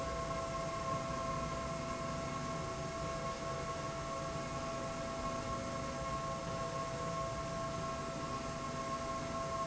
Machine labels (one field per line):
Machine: slide rail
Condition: normal